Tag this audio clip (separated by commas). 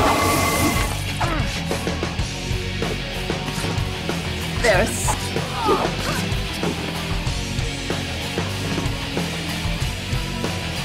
Speech, Music